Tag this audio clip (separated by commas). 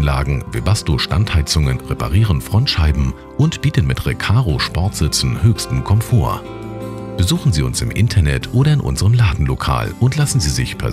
Music, Speech